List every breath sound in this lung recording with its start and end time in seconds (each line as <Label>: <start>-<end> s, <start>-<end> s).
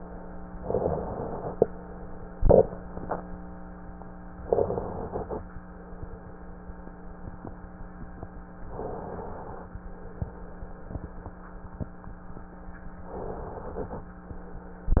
Inhalation: 0.64-1.64 s, 4.42-5.43 s, 8.69-9.69 s, 13.08-14.09 s